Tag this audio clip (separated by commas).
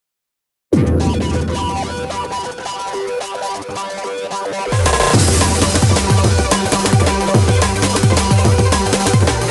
Drum and bass